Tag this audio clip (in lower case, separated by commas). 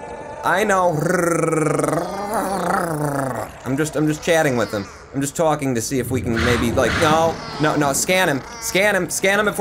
speech